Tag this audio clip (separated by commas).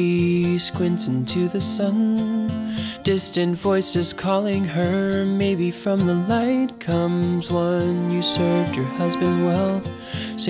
Music, Tender music